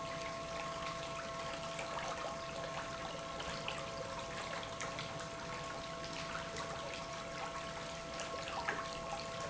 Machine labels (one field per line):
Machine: pump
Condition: normal